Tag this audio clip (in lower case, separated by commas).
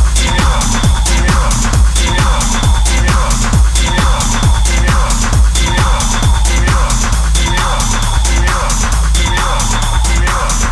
music